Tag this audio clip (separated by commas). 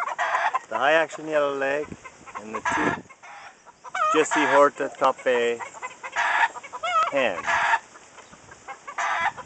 Speech, Chicken, Bird, livestock